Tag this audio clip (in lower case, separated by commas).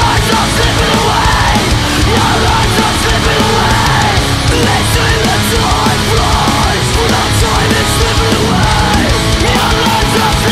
music, rhythm and blues